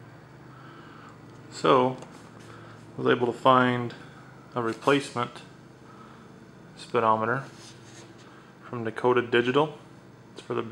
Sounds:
speech

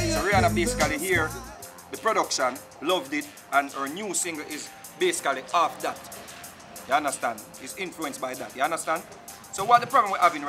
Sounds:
house music, music, speech

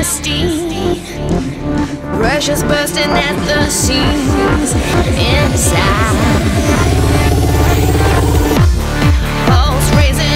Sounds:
singing, music

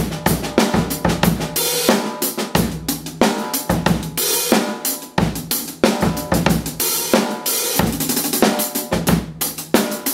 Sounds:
percussion, music

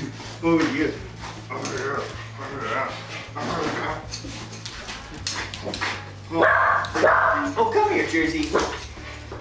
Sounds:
speech, pets, dog, music, animal

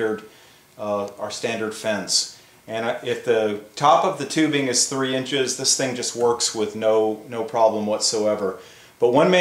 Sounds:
speech

